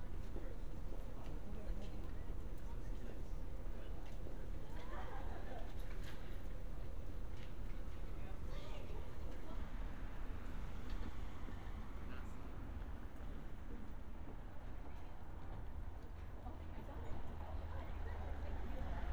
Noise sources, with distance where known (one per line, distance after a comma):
person or small group talking